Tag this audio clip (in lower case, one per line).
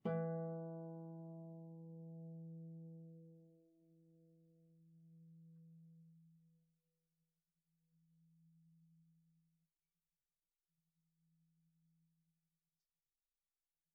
music
harp
musical instrument